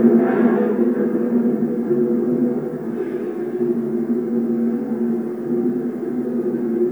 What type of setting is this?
subway train